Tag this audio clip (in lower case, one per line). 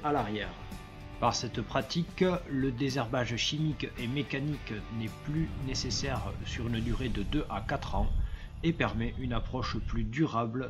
speech
music